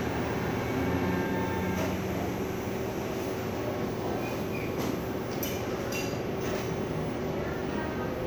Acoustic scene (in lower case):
cafe